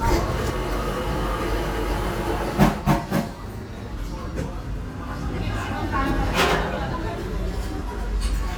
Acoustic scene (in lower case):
cafe